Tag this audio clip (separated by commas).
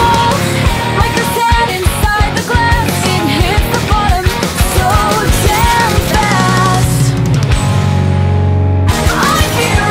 Grunge